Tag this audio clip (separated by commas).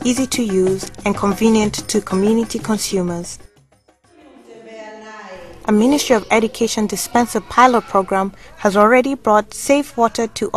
Female speech, Speech, Music